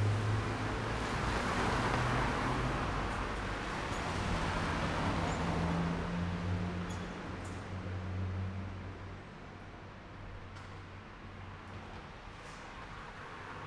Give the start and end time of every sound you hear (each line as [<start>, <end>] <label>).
[0.00, 0.54] motorcycle
[0.00, 0.54] motorcycle engine accelerating
[0.00, 6.39] car
[0.00, 6.39] car wheels rolling
[0.00, 8.50] bus
[0.00, 8.50] bus engine accelerating
[10.82, 13.66] car
[10.82, 13.66] car wheels rolling